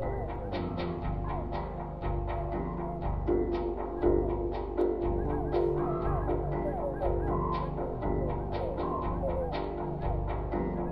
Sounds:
Music

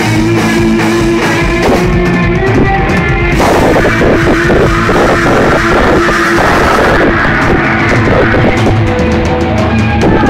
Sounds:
Rock music, Music

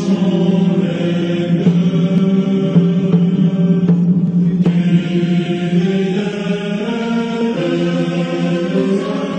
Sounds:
Music

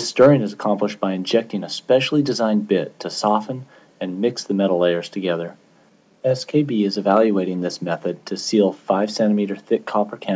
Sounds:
Speech

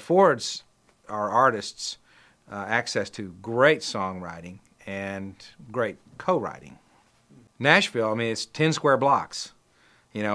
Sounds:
Speech

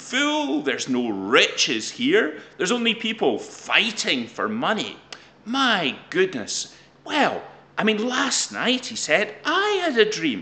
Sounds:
Speech, inside a small room

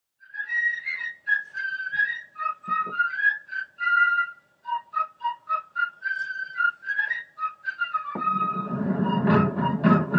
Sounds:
Music

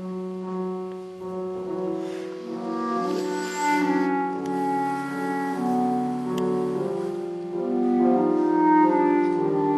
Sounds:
Piano, Clarinet, playing clarinet, Classical music, Music, Musical instrument

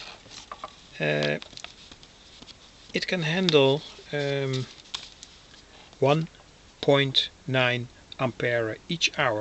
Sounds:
inside a small room, Speech

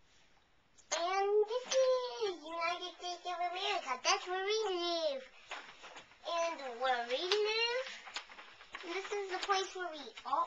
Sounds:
Speech

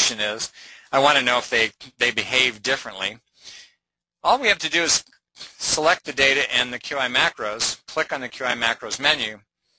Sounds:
Speech

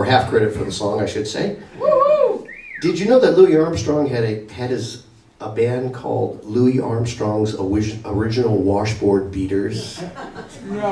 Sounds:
Speech

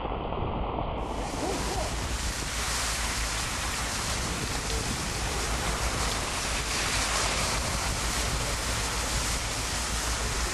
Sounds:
Wind noise (microphone), Wind

